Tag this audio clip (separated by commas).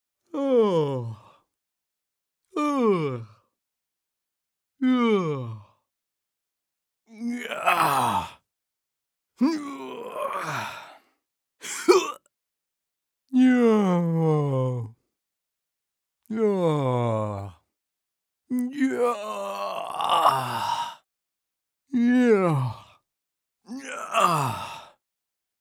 Human voice